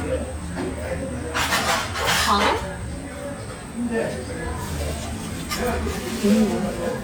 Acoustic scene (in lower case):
restaurant